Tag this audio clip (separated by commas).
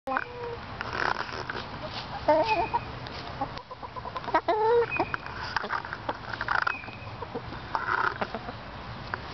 chicken clucking, Chicken, Cluck, Fowl